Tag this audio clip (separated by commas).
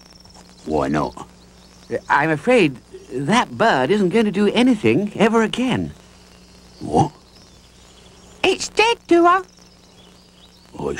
Speech